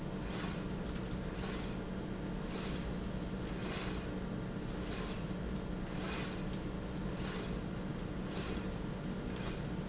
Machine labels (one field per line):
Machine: slide rail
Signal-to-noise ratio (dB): -6 dB